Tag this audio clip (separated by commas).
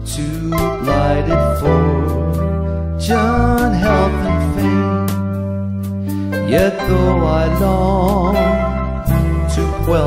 Music